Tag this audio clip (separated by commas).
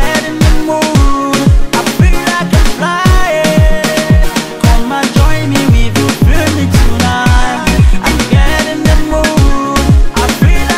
Music, Exciting music